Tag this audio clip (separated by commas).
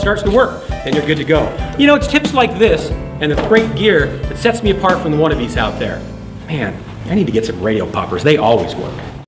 Speech, Music